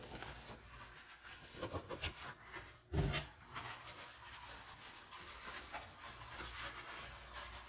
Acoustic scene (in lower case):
kitchen